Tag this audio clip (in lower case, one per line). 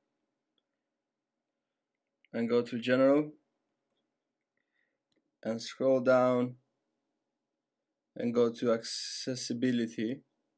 speech